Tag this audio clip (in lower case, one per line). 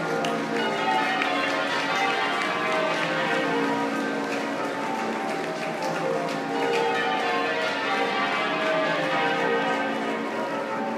music